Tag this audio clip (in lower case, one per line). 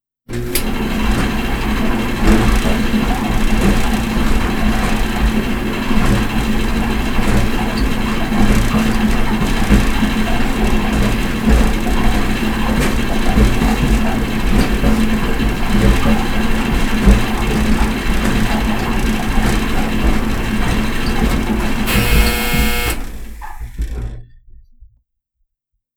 engine